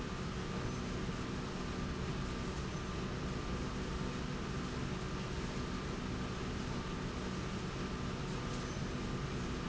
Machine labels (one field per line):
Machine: slide rail